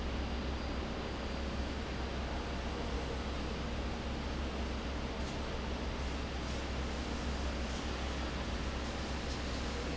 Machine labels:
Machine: fan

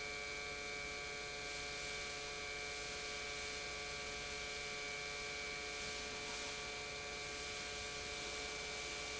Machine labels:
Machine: pump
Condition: normal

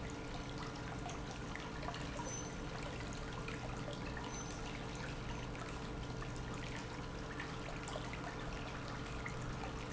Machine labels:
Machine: pump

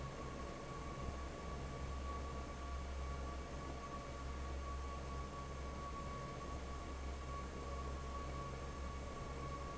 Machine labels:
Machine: fan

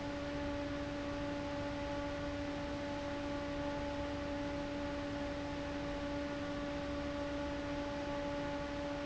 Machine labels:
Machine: fan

